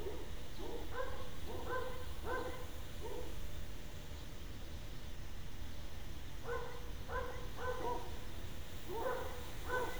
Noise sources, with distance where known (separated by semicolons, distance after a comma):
dog barking or whining, far